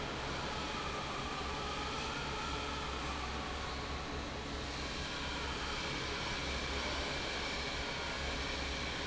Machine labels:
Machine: fan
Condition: normal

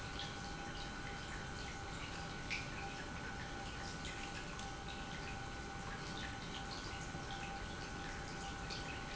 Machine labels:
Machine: pump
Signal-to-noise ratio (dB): 6 dB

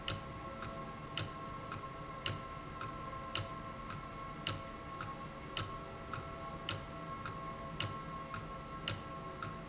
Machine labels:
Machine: valve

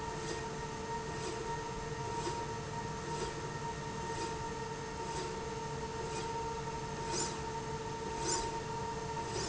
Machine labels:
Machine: slide rail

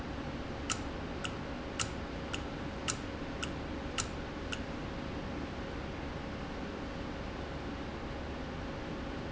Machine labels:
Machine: valve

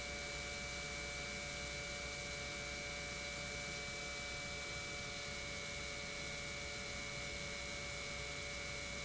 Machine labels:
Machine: pump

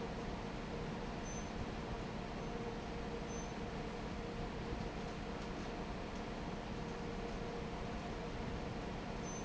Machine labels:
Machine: fan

